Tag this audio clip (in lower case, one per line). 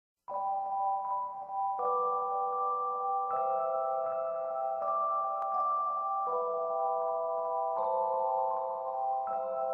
music